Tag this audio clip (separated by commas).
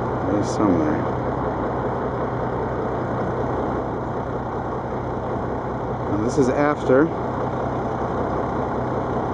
Speech, Car, Vehicle, outside, rural or natural